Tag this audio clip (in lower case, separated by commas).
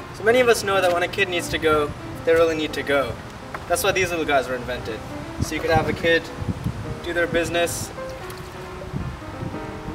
speech, music